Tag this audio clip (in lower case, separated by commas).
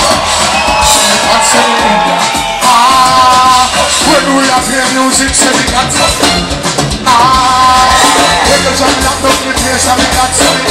maraca, music